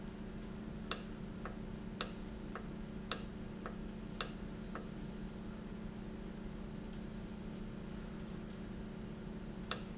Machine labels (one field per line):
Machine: valve